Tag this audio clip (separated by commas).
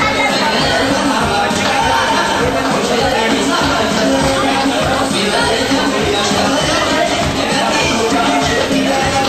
Speech, Music